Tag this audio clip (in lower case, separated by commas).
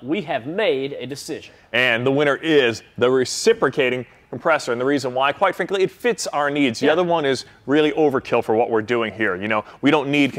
speech